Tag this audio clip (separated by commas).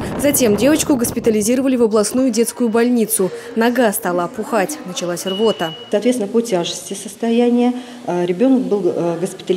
inside a large room or hall, Speech